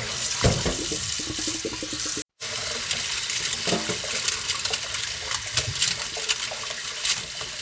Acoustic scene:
kitchen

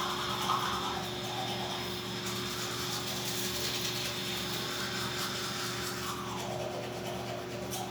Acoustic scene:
restroom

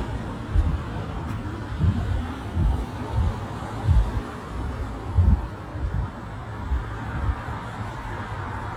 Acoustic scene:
residential area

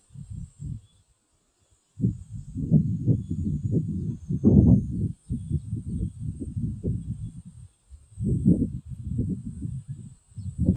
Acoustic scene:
park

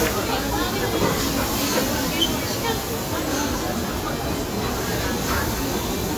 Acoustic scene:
restaurant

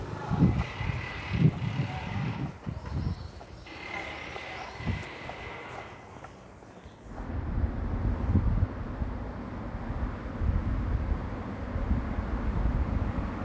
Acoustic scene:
residential area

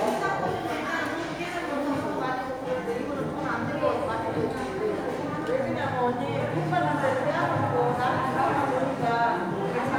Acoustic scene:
crowded indoor space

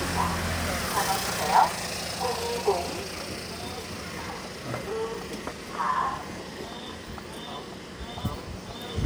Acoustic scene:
residential area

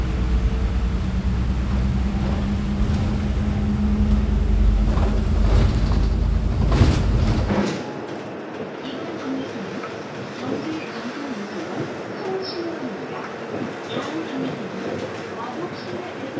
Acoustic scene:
bus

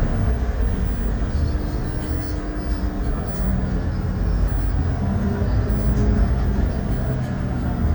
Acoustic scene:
bus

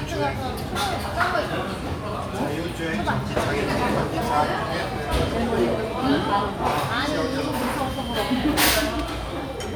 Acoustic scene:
restaurant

